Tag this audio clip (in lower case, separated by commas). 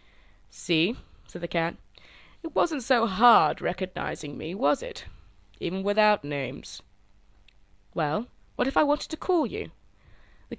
speech